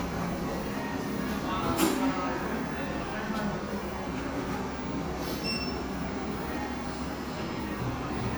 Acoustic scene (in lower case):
cafe